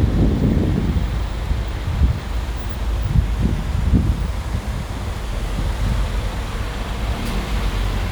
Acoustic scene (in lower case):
street